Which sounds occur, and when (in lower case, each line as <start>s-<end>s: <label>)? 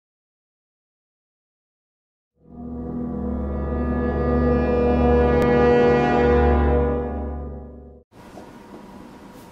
2.3s-8.0s: music
8.1s-9.5s: mechanisms